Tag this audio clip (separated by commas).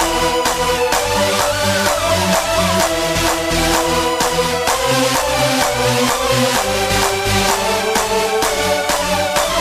Music, Electronic dance music